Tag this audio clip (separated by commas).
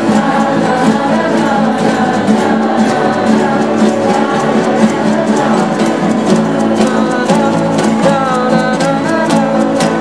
Acoustic guitar, Strum, Guitar, Music, Plucked string instrument, Musical instrument